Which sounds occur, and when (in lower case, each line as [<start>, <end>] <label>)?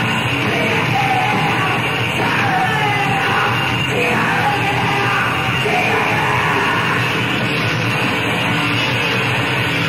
[0.00, 9.85] music
[0.28, 7.01] male singing